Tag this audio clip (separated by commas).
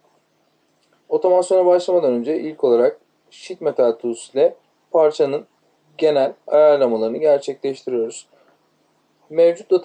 Speech